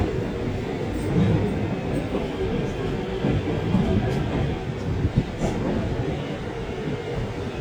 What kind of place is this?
subway train